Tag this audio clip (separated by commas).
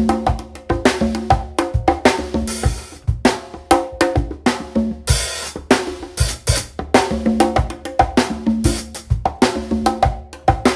playing congas